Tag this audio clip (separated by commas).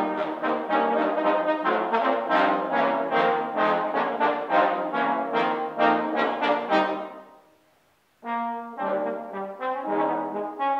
Trombone, Wind instrument, playing trombone, Brass instrument